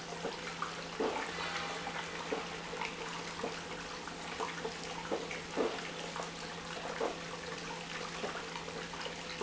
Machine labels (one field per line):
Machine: pump